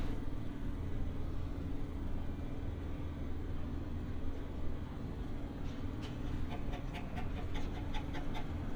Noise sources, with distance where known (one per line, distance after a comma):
engine of unclear size